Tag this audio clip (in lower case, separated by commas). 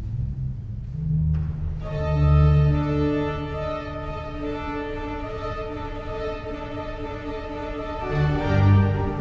music